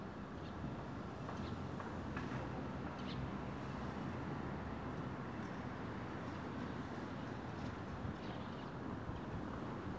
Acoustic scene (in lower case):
street